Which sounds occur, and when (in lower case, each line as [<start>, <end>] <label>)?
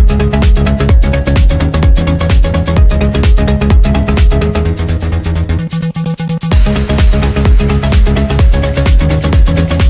[0.00, 9.85] music